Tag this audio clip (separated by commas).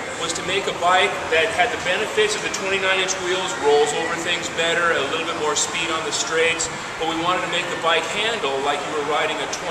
Speech